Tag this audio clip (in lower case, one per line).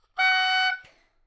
wind instrument
music
musical instrument